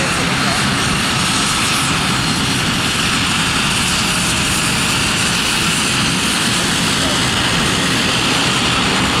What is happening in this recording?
An aircraft engines rev loudly